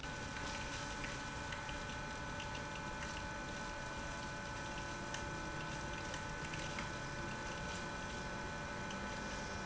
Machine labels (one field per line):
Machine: pump